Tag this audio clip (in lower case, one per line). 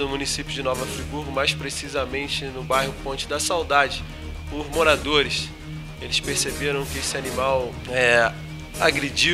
music
speech